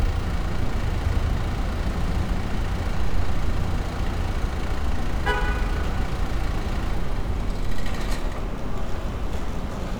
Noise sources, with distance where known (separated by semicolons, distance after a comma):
engine of unclear size, near